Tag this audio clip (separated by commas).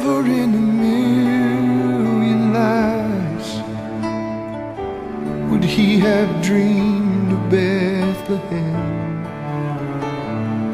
Music, Male singing